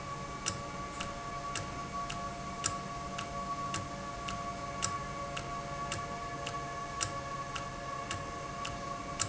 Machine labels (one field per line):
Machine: valve